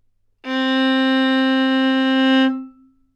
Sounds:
music, bowed string instrument, musical instrument

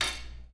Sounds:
home sounds, cutlery

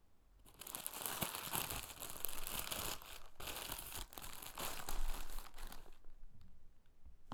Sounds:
crinkling

